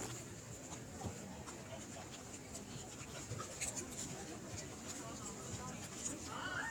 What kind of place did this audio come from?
park